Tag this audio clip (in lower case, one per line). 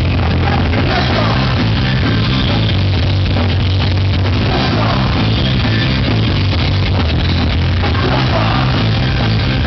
music